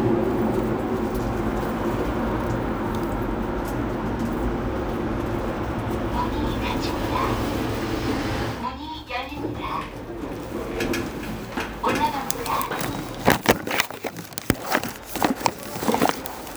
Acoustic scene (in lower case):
elevator